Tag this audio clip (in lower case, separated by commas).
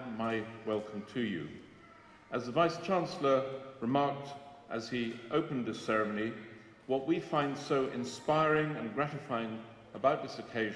narration, speech, man speaking